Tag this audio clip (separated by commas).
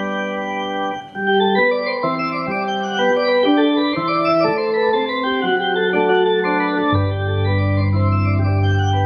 playing hammond organ